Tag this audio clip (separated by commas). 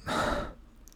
Breathing, Respiratory sounds